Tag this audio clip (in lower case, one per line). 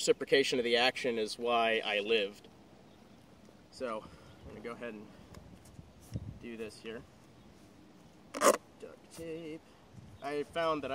speech